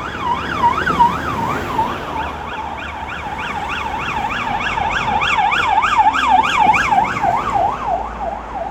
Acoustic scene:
street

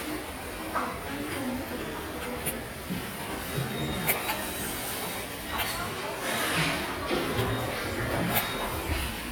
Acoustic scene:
subway station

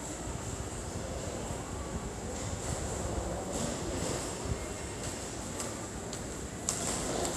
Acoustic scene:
subway station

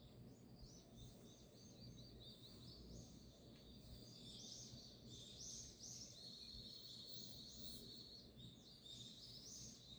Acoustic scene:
park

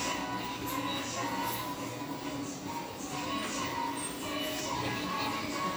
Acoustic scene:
cafe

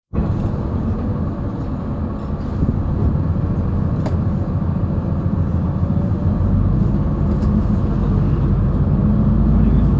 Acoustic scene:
bus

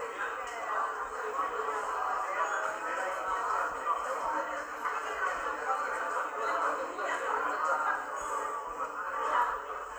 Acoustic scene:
cafe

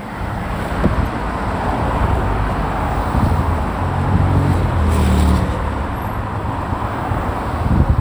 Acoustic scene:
street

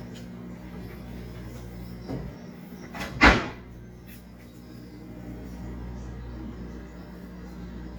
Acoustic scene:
kitchen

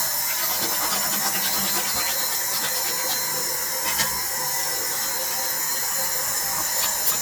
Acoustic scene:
restroom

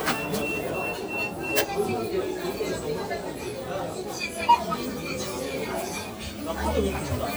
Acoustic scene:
crowded indoor space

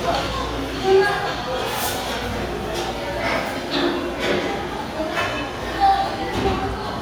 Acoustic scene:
restaurant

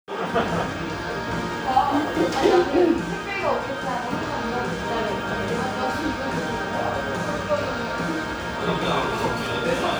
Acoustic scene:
cafe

